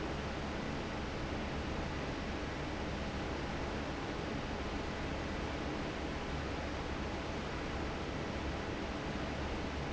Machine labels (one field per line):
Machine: fan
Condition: normal